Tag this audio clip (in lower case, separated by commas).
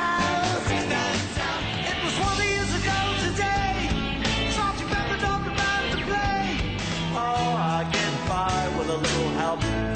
music